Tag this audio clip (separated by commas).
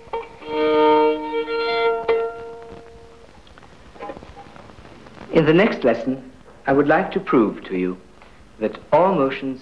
Musical instrument, Speech, Music, fiddle